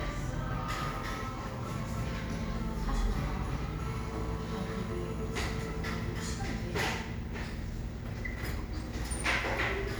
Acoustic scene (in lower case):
cafe